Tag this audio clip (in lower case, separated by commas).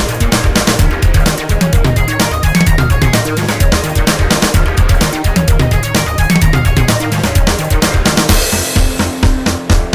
house music, music, exciting music